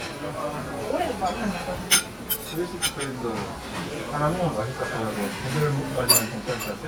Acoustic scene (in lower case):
restaurant